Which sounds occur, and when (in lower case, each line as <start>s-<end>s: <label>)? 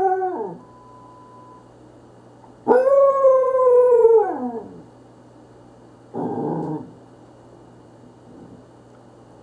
0.0s-9.4s: mechanisms
0.6s-1.6s: bleep
6.1s-6.8s: howl